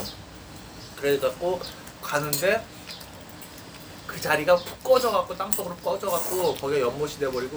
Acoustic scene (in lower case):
restaurant